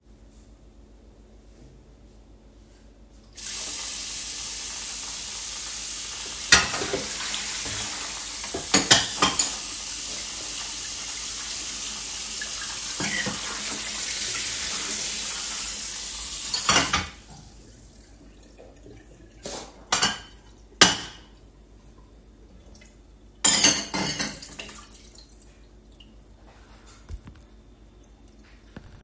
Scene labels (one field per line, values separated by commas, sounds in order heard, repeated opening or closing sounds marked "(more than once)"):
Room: kitchen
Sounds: running water, cutlery and dishes